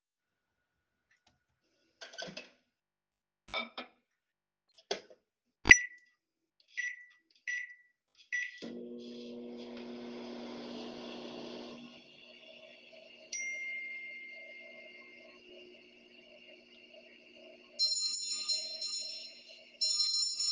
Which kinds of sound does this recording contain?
microwave, cutlery and dishes, phone ringing, bell ringing